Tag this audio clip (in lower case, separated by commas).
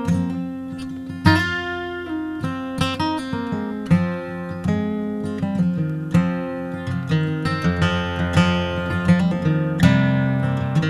musical instrument, music